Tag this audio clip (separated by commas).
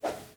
Whoosh